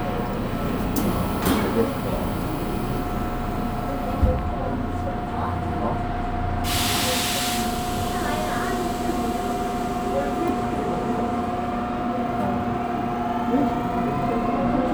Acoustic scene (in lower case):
subway train